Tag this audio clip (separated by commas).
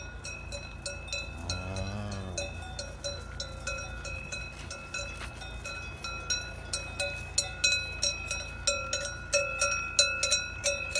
cattle